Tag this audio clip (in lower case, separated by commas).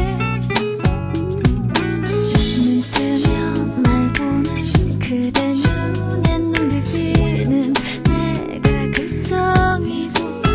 music, rhythm and blues